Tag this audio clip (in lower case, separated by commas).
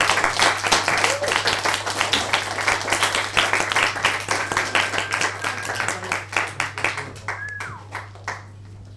human group actions, cheering